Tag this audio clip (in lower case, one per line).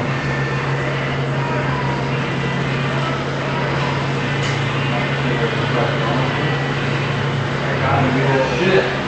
speech